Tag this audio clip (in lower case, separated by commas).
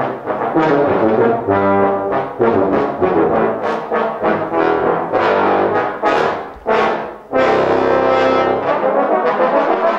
brass instrument